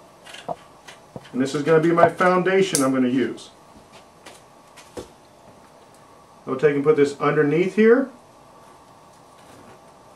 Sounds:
speech

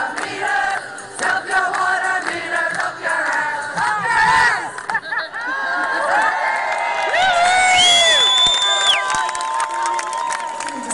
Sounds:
speech

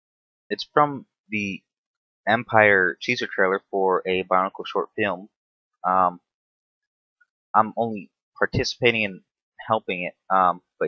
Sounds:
speech

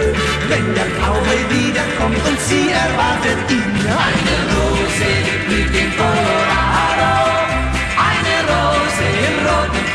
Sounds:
music

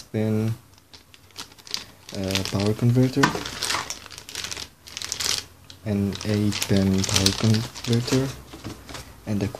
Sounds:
speech
crumpling

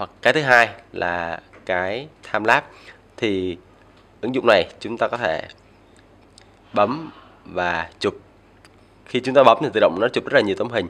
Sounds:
speech

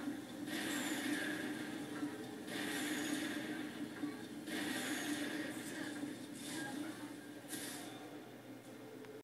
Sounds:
speech

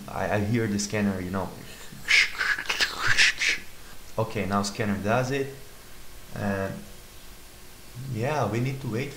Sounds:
speech

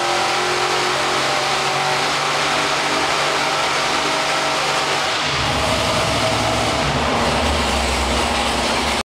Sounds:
heavy engine (low frequency)

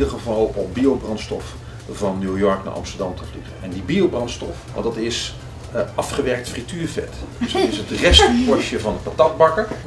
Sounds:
speech

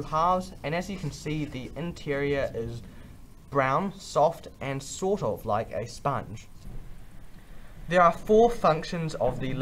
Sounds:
speech

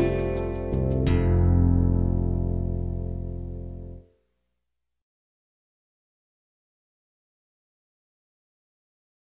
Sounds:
music

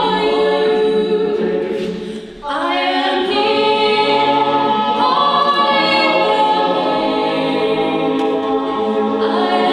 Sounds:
choir
singing
music

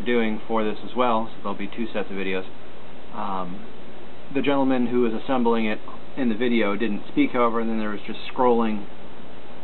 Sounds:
speech

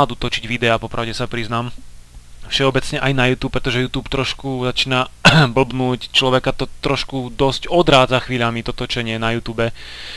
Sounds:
speech

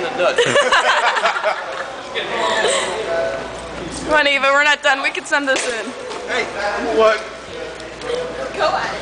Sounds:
inside a large room or hall
speech

